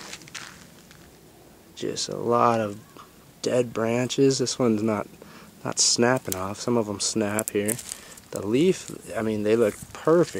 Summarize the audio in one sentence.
Leaves rustle as a man speaks